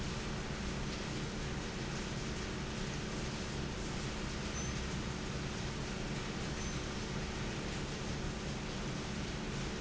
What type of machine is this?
fan